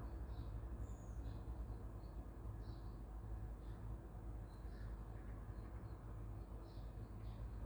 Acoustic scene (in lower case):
park